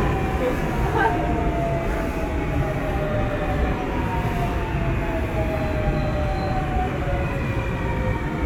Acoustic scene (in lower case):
subway train